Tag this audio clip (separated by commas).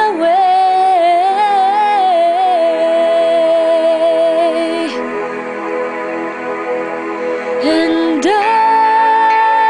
Music, Female singing